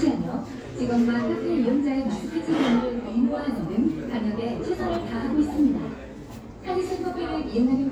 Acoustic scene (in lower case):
cafe